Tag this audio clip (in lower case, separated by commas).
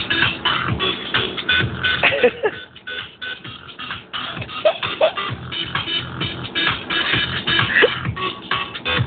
music